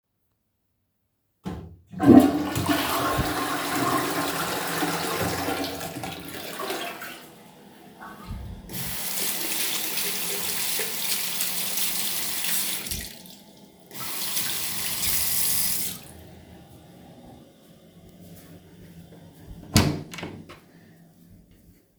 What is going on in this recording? I flushed the toilet and came to the sink. I washed my hands and then left the bathroom.